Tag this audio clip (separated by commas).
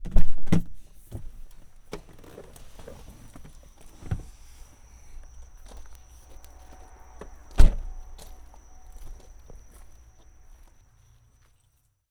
Insect, Cricket, Animal, Wild animals